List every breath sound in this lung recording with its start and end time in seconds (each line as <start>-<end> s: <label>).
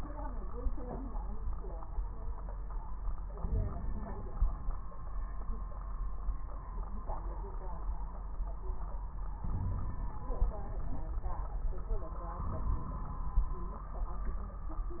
3.38-4.79 s: inhalation
3.38-4.79 s: crackles
9.46-11.03 s: inhalation
9.46-11.03 s: crackles
12.39-13.62 s: inhalation
12.39-13.62 s: crackles